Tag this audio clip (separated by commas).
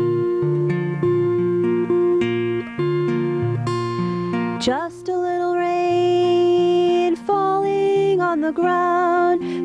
Music